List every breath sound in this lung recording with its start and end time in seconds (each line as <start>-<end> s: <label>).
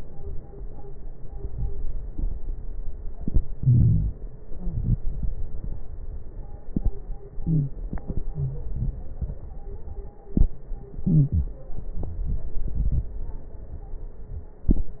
3.13-4.51 s: inhalation
3.57-4.11 s: wheeze
4.49-4.90 s: wheeze
4.50-6.55 s: exhalation
7.33-8.27 s: inhalation
7.39-7.72 s: wheeze
8.23-10.09 s: exhalation
8.32-8.66 s: wheeze
10.88-12.15 s: inhalation
11.02-11.60 s: wheeze
12.18-13.63 s: exhalation